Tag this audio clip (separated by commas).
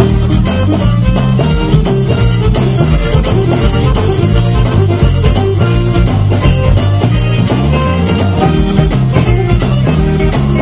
Middle Eastern music, Music